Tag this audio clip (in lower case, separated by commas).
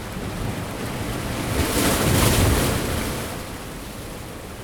surf, ocean, water